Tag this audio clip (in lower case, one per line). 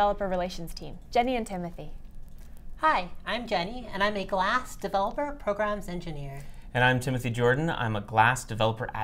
speech